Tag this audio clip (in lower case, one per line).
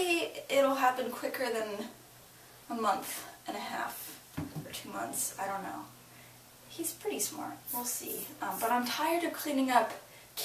speech